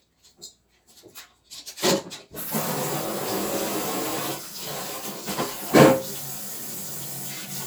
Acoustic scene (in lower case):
kitchen